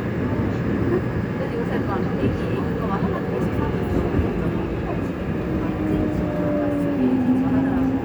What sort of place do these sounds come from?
subway train